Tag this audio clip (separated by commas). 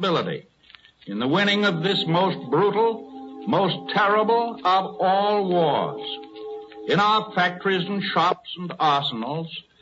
Speech, Narration, man speaking